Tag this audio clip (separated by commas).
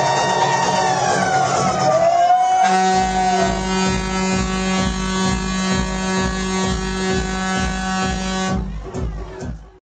Music, truck horn